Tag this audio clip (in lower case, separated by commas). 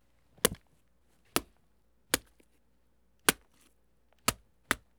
wood, domestic sounds